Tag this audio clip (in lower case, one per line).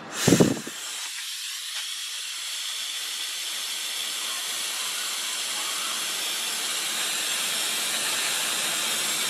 steam
hiss